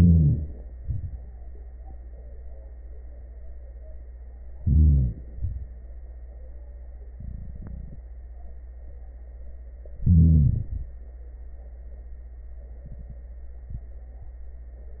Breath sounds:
Inhalation: 0.00-0.76 s, 4.57-5.30 s, 10.04-10.93 s
Exhalation: 0.77-1.36 s, 5.32-5.84 s
Crackles: 0.00-0.72 s, 0.77-1.40 s, 4.57-5.30 s, 5.30-5.88 s, 10.04-10.93 s

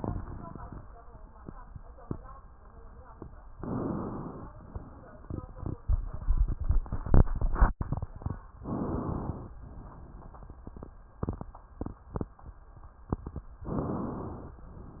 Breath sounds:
Inhalation: 3.58-4.51 s, 8.64-9.57 s
Exhalation: 4.53-5.77 s, 9.62-10.93 s

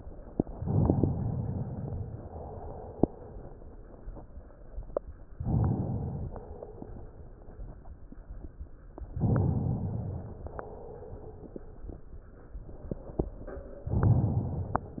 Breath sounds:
Inhalation: 0.59-1.54 s, 5.39-6.34 s, 9.22-10.46 s, 13.93-14.88 s
Exhalation: 1.96-3.03 s, 6.38-7.45 s, 10.49-11.56 s

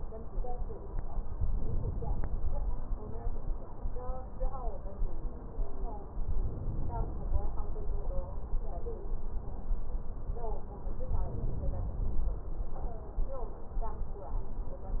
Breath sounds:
Inhalation: 1.49-2.36 s, 6.37-7.36 s, 11.15-12.00 s

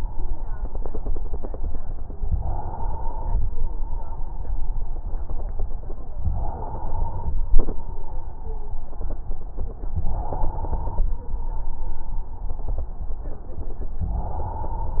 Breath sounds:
Inhalation: 2.34-3.40 s, 6.27-7.33 s, 9.99-11.05 s, 14.02-15.00 s

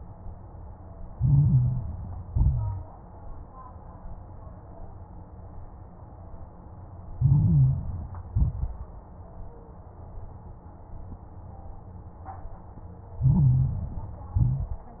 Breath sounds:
Inhalation: 1.04-2.20 s, 7.11-8.26 s, 13.13-14.29 s
Exhalation: 2.24-2.98 s, 8.30-9.04 s, 14.33-15.00 s
Crackles: 1.04-2.20 s, 2.24-2.98 s, 7.11-8.26 s, 8.30-9.04 s, 13.13-14.29 s, 14.33-15.00 s

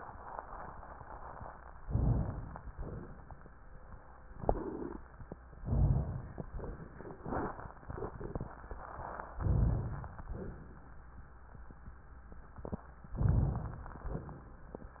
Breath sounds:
Inhalation: 1.85-2.72 s, 5.68-6.49 s, 9.43-10.31 s, 13.19-14.05 s
Exhalation: 2.72-3.53 s, 6.53-7.20 s, 7.21-7.74 s, 7.81-8.57 s, 10.29-11.07 s, 14.05-14.63 s
Crackles: 13.19-14.05 s

